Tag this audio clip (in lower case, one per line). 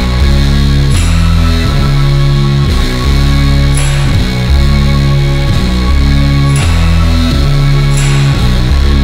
distortion
rock music
progressive rock
music